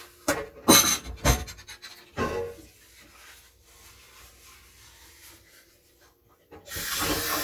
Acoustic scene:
kitchen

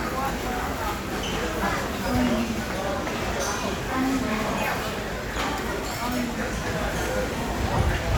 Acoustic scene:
crowded indoor space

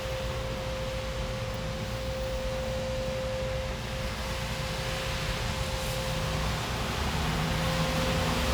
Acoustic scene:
elevator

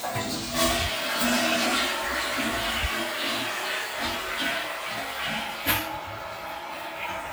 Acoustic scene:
restroom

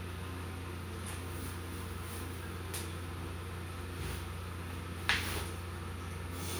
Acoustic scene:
restroom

